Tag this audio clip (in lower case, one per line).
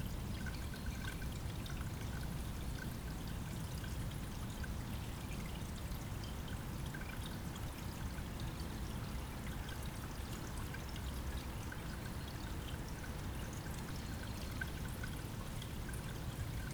stream
water
liquid
pour
dribble